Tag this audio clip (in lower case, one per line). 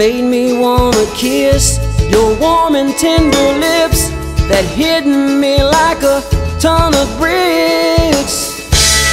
country
music